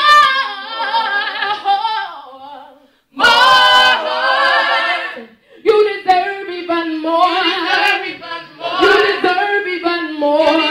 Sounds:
female singing

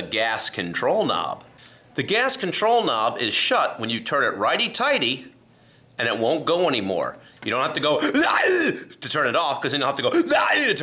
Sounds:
speech

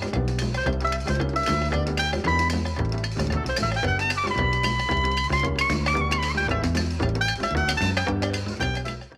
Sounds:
music

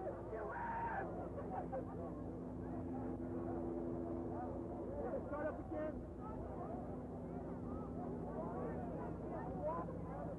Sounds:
speech
water vehicle
motorboat

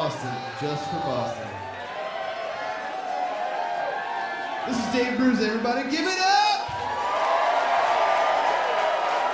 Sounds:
speech

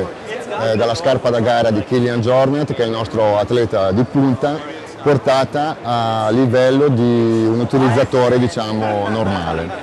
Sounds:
speech

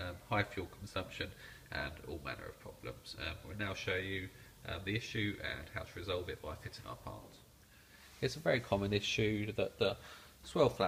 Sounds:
speech

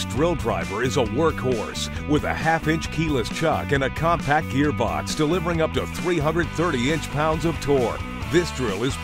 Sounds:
speech
music

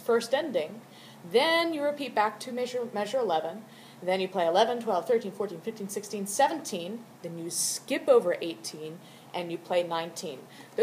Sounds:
speech

